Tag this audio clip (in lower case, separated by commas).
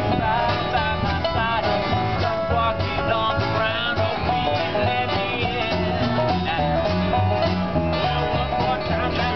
bluegrass, music